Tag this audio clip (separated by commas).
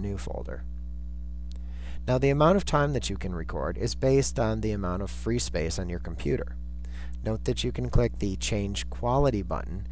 Speech